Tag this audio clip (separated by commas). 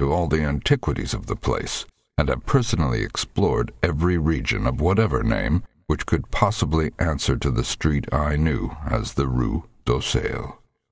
Speech